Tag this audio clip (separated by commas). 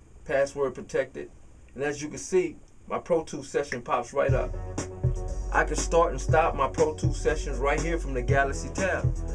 Speech, Music